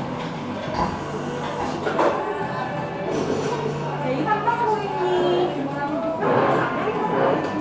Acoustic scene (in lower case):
cafe